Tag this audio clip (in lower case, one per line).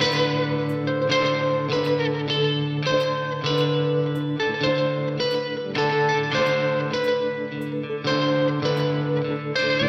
music